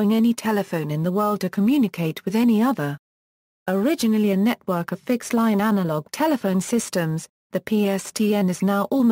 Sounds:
speech

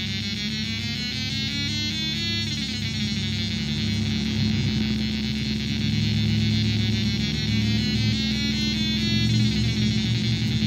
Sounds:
music, synthesizer

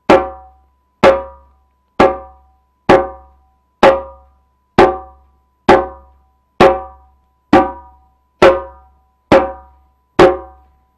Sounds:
playing djembe

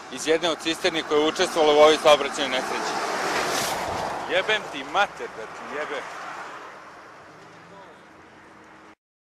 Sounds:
car, speech, vehicle, truck

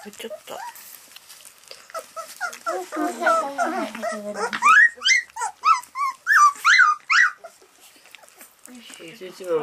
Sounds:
animal, speech, domestic animals, dog

